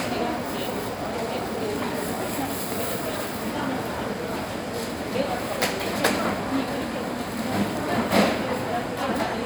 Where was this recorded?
in a crowded indoor space